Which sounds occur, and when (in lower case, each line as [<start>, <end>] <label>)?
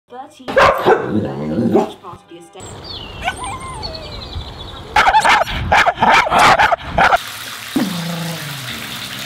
[0.06, 2.61] television
[0.98, 1.72] growling
[1.10, 2.57] woman speaking
[2.01, 2.53] music
[3.39, 3.46] tick
[4.66, 4.95] human voice
[6.95, 7.14] bark
[7.14, 9.25] gush
[7.18, 9.25] bathtub (filling or washing)
[7.72, 9.25] dog